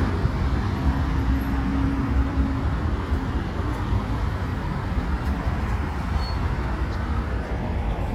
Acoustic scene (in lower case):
street